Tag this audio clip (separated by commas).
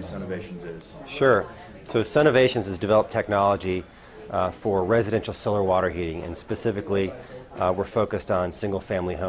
Speech